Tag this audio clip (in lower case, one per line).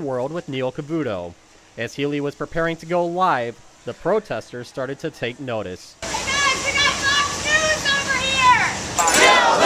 speech